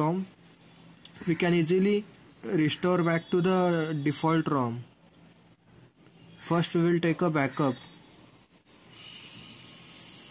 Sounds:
Speech

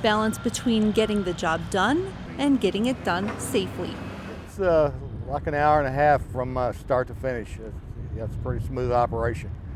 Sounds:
Speech

